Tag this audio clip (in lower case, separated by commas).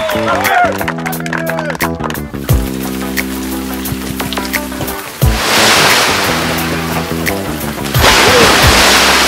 waterfall, music